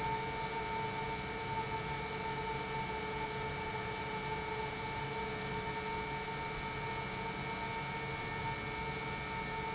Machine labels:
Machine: pump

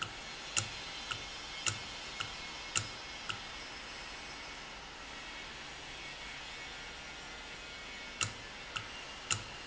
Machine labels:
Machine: valve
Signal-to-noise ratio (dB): 0 dB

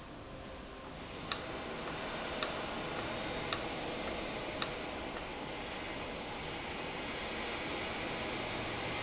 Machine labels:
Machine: valve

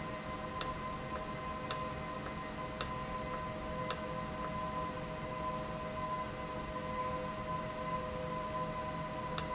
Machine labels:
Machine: valve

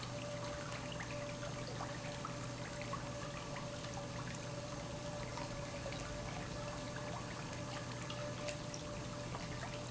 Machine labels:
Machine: pump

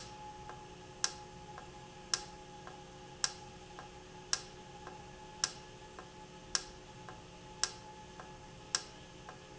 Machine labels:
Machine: valve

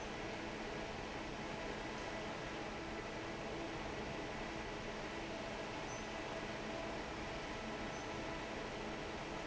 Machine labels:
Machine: fan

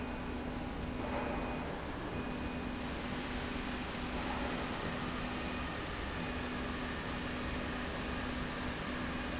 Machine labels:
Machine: slide rail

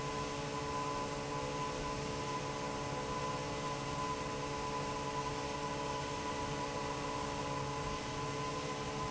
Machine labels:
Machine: fan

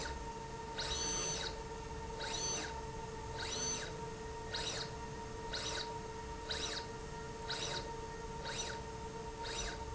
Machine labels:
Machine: slide rail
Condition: abnormal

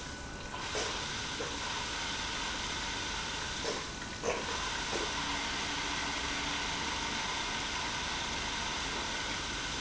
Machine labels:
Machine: pump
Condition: abnormal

